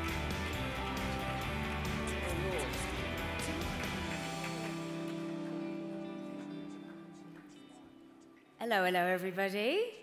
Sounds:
Music, Speech

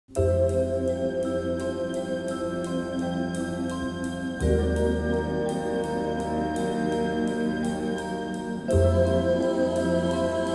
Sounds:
Vibraphone

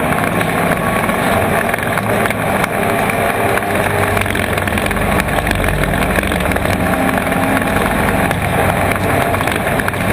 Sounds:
Vehicle

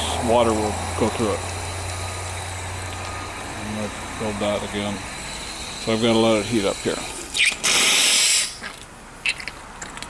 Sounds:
Steam, Speech

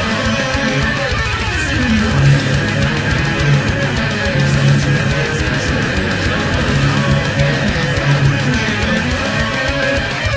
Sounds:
Strum, Guitar, Acoustic guitar, Music, Plucked string instrument, Musical instrument, Electric guitar

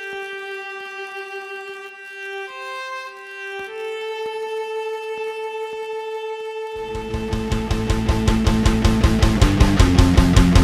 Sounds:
Strum, Guitar, Plucked string instrument, Music, Bass guitar, Musical instrument

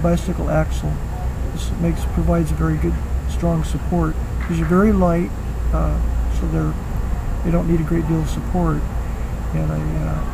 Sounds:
Speech

